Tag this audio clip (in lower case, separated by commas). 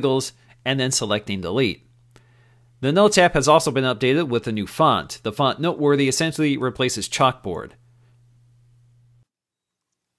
speech